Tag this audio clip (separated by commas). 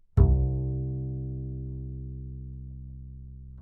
Bowed string instrument, Musical instrument, Music